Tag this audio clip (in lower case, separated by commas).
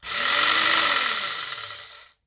engine, engine starting